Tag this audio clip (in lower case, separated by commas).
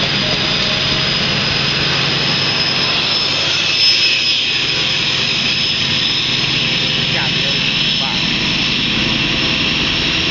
train wagon, train, rail transport, outside, rural or natural, vehicle, speech